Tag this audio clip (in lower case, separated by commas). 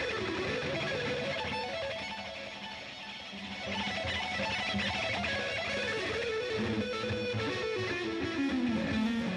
plucked string instrument, electric guitar, musical instrument, strum, music